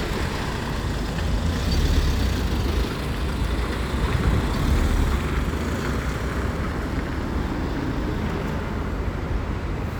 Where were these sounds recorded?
on a street